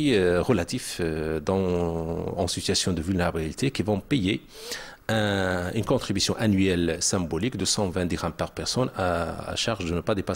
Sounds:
speech

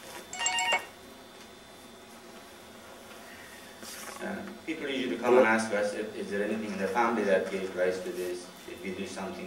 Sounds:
speech

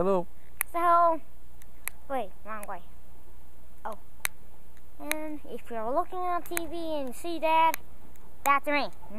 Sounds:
speech

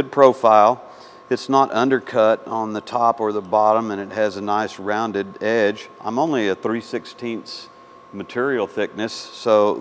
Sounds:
arc welding

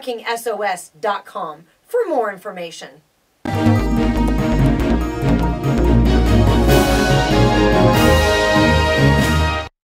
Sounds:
music
speech

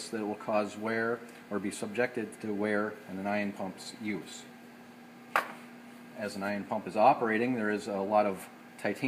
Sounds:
speech

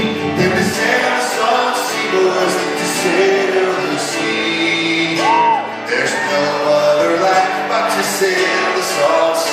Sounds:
rhythm and blues
music

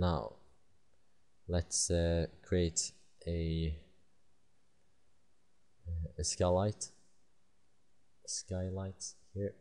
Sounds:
speech

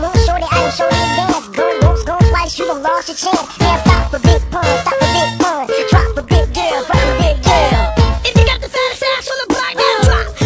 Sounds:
music
hip hop music
pop music

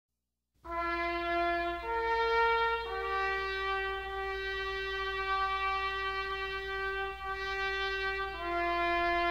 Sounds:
trumpet
music

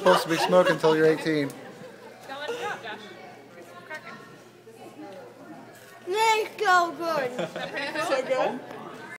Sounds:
speech

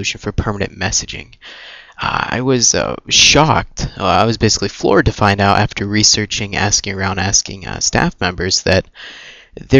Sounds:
speech

